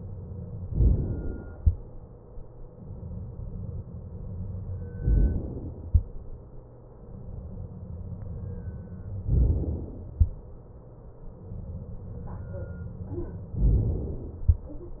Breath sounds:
0.70-1.56 s: inhalation
5.00-5.86 s: inhalation
9.30-10.16 s: inhalation
13.60-14.46 s: inhalation

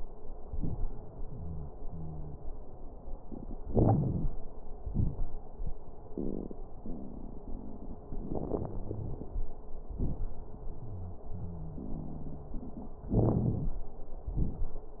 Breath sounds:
1.27-1.70 s: wheeze
1.84-2.39 s: wheeze
3.63-4.33 s: inhalation
3.63-4.33 s: crackles
4.83-5.31 s: exhalation
4.83-5.31 s: crackles
8.18-9.32 s: inhalation
8.65-9.13 s: wheeze
9.85-10.35 s: exhalation
9.85-10.35 s: crackles
10.88-11.23 s: wheeze
11.34-12.63 s: wheeze
13.14-13.85 s: inhalation
13.14-13.85 s: wheeze
14.29-14.80 s: exhalation
14.29-14.80 s: crackles

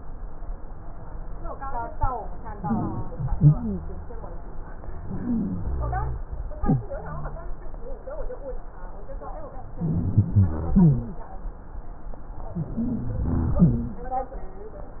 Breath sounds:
2.60-3.30 s: inhalation
2.60-3.30 s: wheeze
3.38-3.83 s: exhalation
3.38-3.83 s: wheeze
5.18-5.64 s: inhalation
5.18-5.64 s: wheeze
5.75-6.21 s: exhalation
5.75-6.21 s: rhonchi
9.77-10.76 s: rhonchi
10.76-11.21 s: wheeze
12.54-13.23 s: inhalation
12.54-13.23 s: wheeze
13.23-13.60 s: exhalation
13.23-13.60 s: rhonchi
13.60-14.08 s: inhalation
13.60-14.08 s: wheeze

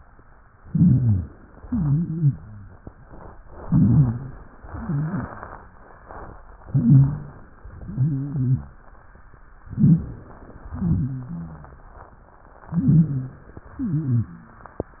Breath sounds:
0.61-1.39 s: inhalation
0.61-1.39 s: wheeze
1.59-2.37 s: exhalation
1.59-2.37 s: wheeze
3.62-4.40 s: inhalation
3.62-4.40 s: wheeze
4.63-5.41 s: exhalation
4.63-5.41 s: wheeze
6.66-7.44 s: inhalation
6.66-7.44 s: wheeze
7.86-8.82 s: exhalation
7.86-8.82 s: wheeze
9.64-10.25 s: wheeze
9.64-10.61 s: inhalation
10.70-11.94 s: exhalation
10.70-11.94 s: wheeze
12.71-13.61 s: inhalation
12.71-13.61 s: wheeze
13.76-14.65 s: exhalation
13.76-14.65 s: wheeze

